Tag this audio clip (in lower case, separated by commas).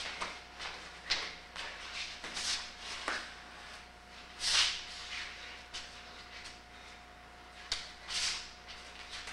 inside a small room